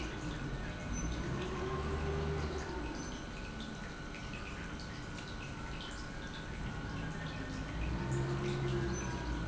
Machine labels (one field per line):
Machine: pump